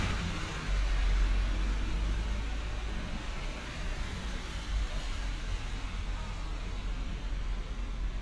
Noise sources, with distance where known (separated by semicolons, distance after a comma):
engine of unclear size